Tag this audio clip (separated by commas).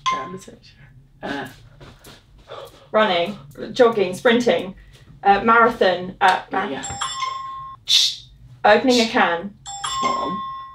Speech, inside a small room